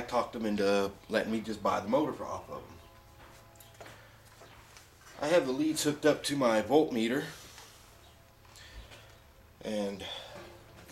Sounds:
speech

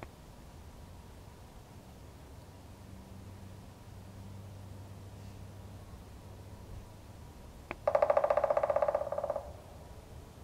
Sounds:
woodpecker pecking tree

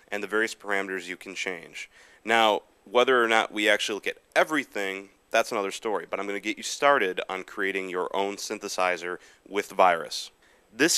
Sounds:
speech

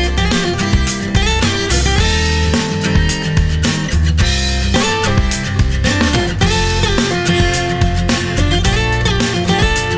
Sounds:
music, musical instrument, guitar, acoustic guitar, strum, plucked string instrument

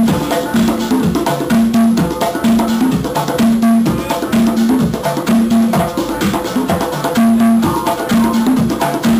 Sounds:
music, wood block, drum, inside a large room or hall, musical instrument

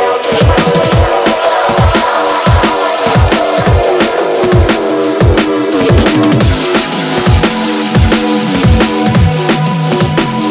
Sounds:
electronic music, music

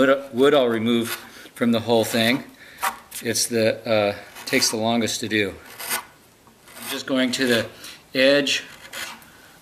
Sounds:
filing (rasp), rub

